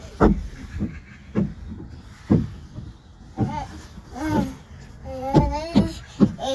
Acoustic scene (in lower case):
park